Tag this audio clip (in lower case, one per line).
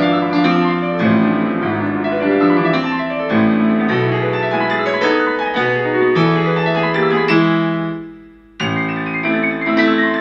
music